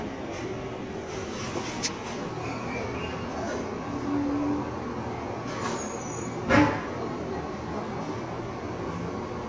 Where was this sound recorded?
in a cafe